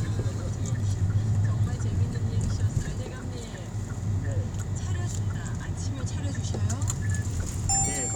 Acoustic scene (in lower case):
car